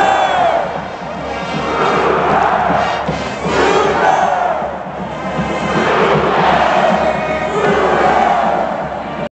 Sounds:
music

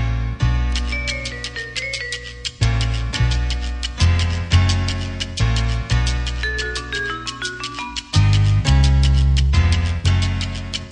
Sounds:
music

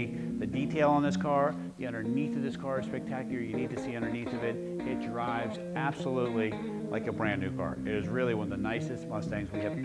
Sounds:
speech
music

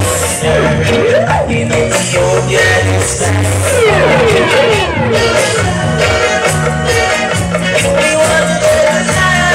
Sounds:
cutlery
music

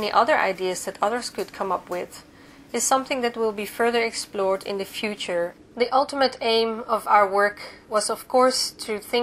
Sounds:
speech

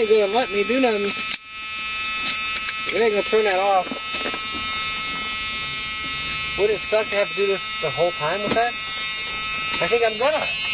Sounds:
speech
outside, urban or man-made

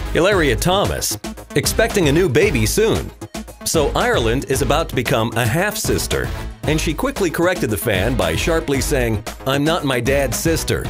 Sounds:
speech
music

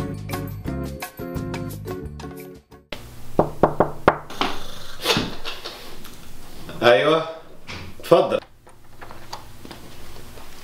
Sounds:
music
speech
inside a small room

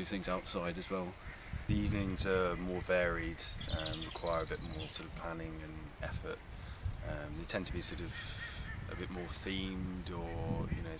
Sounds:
speech

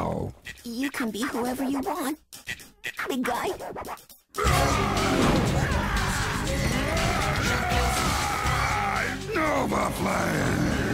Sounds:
music
speech

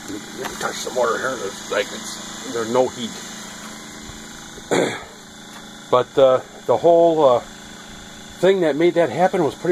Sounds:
speech

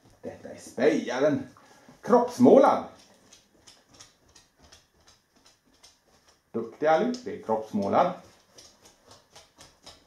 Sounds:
speech

